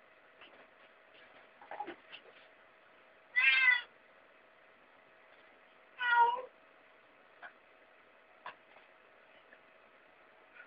A cat meowing twice